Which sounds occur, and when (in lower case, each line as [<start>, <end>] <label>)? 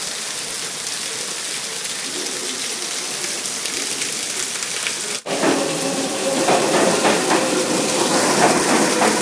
[0.00, 5.19] background noise
[0.00, 9.21] rain on surface
[5.22, 5.64] clickety-clack
[5.24, 9.21] underground
[6.40, 6.84] clickety-clack
[7.01, 7.46] clickety-clack
[8.36, 8.81] clickety-clack
[8.94, 9.21] clickety-clack